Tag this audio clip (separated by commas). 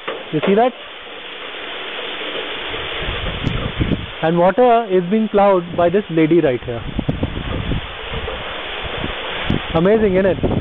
Speech